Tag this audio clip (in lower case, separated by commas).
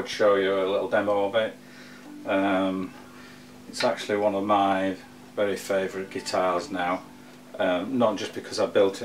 speech